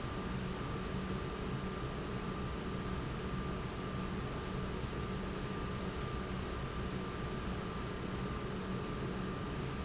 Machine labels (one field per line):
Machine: pump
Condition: normal